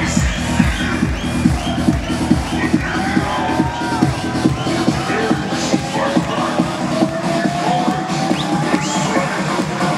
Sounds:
electronic dance music
electronica
music

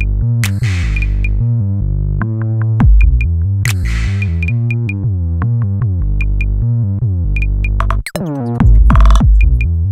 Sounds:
music

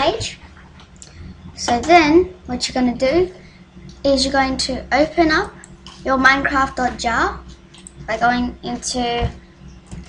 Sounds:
speech

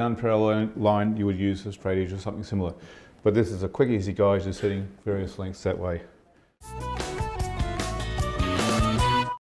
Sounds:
speech
music

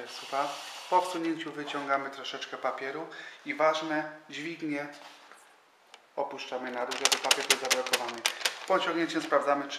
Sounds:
speech

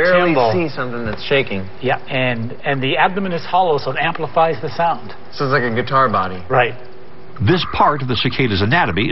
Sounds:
speech

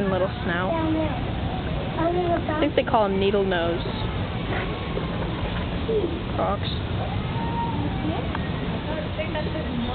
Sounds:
speech

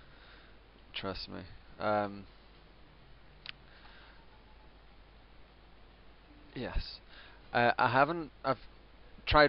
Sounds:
speech

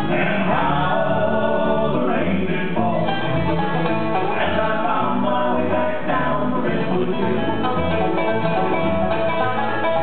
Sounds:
country
bluegrass
musical instrument
music
banjo

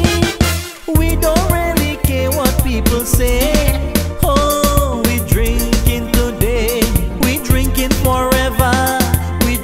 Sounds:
music

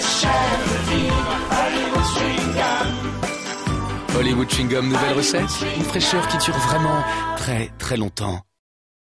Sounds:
speech
music

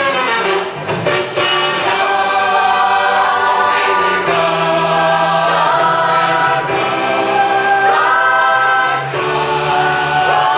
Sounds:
music

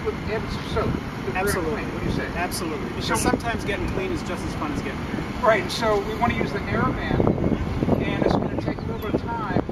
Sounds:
outside, rural or natural
speech

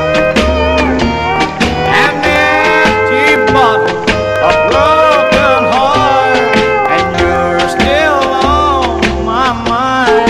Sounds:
inside a small room
slide guitar
musical instrument
music
plucked string instrument

